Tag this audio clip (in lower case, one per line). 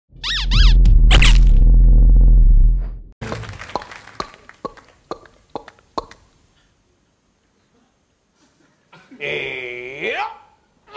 music